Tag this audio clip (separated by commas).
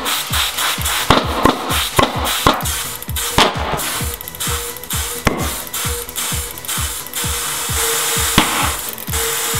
inside a large room or hall, Music